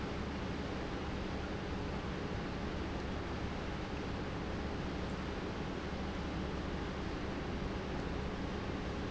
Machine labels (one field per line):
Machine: pump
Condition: normal